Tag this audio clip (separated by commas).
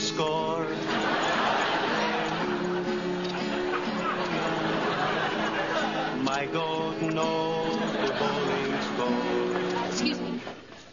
Music, Speech